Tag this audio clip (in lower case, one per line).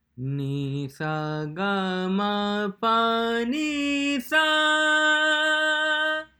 human voice
singing